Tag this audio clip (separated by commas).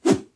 swoosh